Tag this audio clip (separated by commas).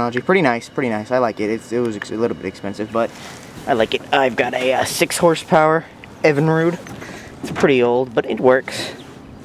Speech